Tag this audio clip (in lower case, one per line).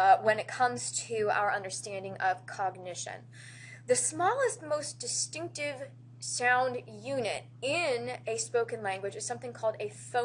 speech
inside a small room